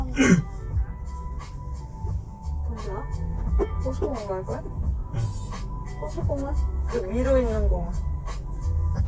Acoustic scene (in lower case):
car